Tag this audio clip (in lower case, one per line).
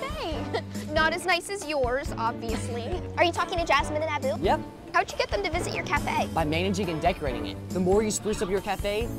music
speech